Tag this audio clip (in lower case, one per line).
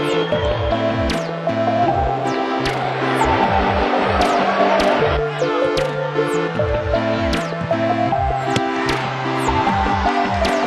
music
outside, urban or man-made
speech